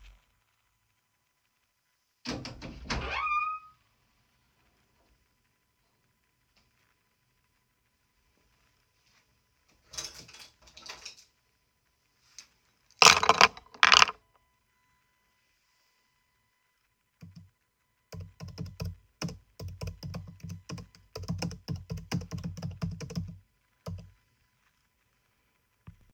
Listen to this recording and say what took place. I opened the window, took a pen from nearby pen stand, put the pen on the table, then I typed something on my laptop.